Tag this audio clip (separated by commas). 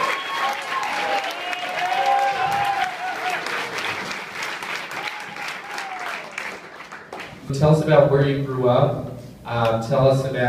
Speech